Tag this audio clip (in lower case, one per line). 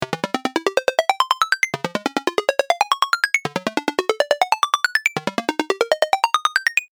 ringtone
telephone
alarm